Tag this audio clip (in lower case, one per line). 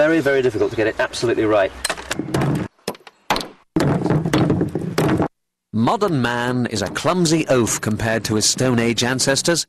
speech